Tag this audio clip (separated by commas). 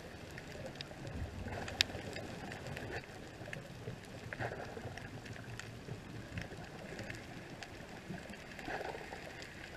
underwater bubbling